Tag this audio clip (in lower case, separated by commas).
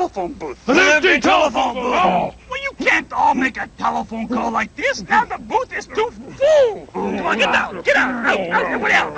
speech